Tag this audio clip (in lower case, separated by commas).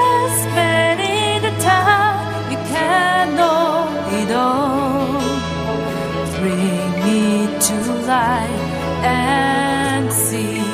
music